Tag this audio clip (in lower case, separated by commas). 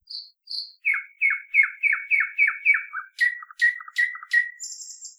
wild animals, chirp, bird, animal, bird call